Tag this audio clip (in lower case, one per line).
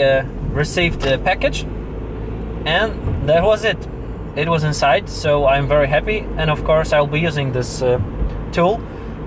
speech